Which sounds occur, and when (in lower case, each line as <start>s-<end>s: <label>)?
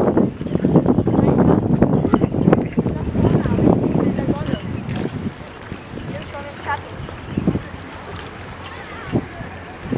0.0s-5.3s: wind noise (microphone)
0.0s-9.9s: water
0.0s-9.9s: wind
3.9s-4.7s: female speech
5.6s-6.3s: wind noise (microphone)
5.9s-7.7s: female speech
7.0s-7.6s: wind noise (microphone)
8.9s-9.9s: female speech
9.8s-9.9s: wind noise (microphone)